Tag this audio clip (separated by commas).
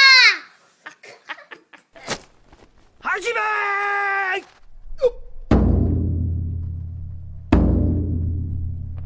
Music, inside a small room, Speech, Timpani